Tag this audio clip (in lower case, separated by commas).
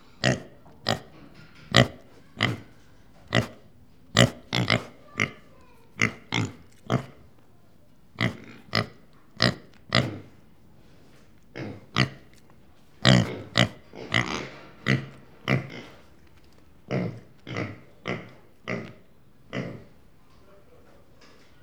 livestock, animal